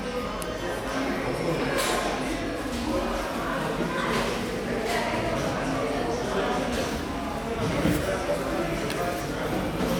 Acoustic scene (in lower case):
cafe